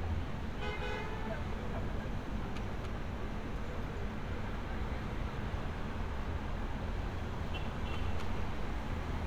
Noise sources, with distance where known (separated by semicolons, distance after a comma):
car horn, near